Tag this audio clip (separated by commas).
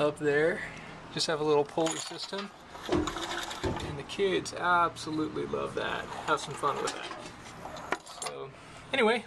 Speech